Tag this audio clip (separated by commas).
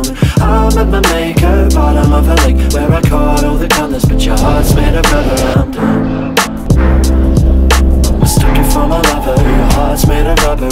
Music